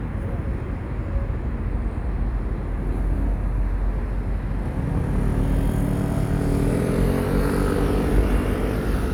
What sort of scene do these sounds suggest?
street